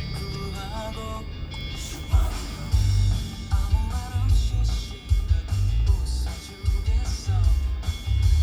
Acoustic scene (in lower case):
car